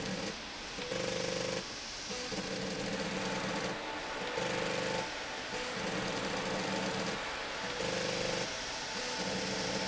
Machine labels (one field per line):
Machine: slide rail